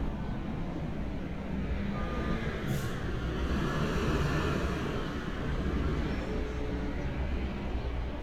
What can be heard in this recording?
medium-sounding engine, car horn